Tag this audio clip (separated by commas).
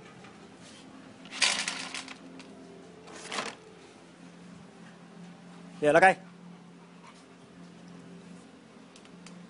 Speech